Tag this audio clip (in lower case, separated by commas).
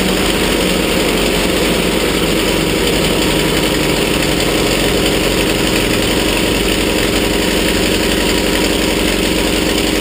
inside a small room, engine, vehicle